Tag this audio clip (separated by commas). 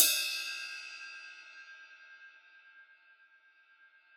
Musical instrument, Percussion, Music, Cymbal, Crash cymbal